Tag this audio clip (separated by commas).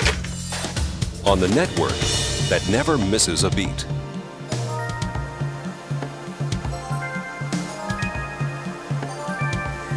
Music, Speech